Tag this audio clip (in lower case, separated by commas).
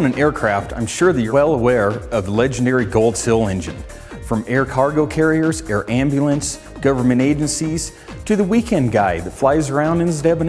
speech, music